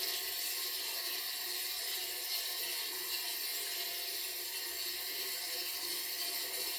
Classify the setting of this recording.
restroom